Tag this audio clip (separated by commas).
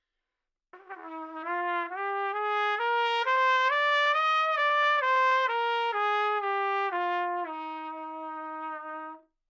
Brass instrument, Trumpet, Music, Musical instrument